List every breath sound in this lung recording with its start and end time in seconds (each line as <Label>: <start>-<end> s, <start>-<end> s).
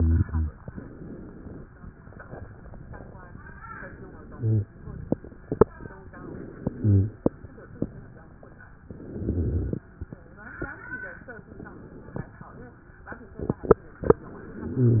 Inhalation: 3.58-4.70 s, 6.07-7.29 s, 8.80-9.87 s
Stridor: 4.35-4.70 s, 6.77-7.12 s